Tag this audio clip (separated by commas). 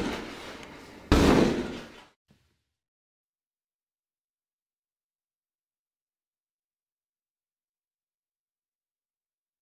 Sliding door